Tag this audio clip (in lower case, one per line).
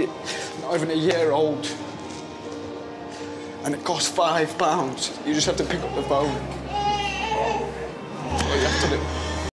speech
music
baby cry